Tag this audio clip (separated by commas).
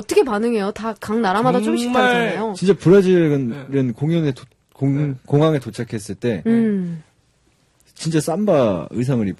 Speech